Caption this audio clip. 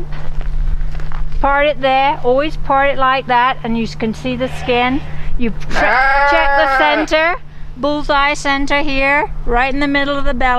Footsteps shuffling on gravel followed by a woman speaking as a sheep baas